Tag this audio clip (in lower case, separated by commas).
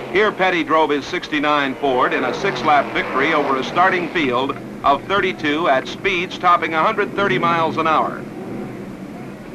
speech, vehicle, car